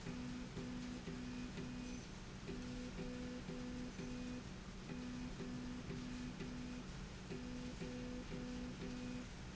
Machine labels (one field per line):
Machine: slide rail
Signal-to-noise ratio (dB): 6 dB